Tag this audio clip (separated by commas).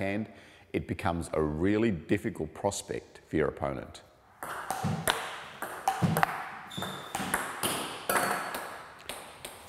playing table tennis